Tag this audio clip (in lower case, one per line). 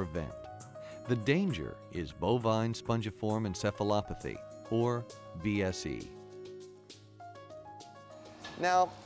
music
speech